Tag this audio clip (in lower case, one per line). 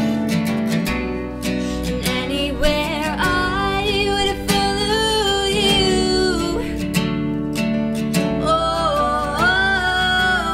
female singing